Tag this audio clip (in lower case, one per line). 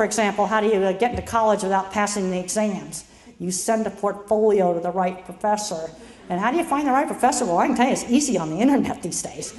speech
female speech
narration